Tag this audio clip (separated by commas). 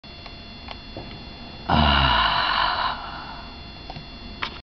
Groan